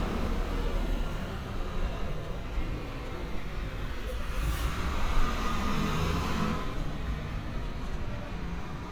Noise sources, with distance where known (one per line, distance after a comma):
large-sounding engine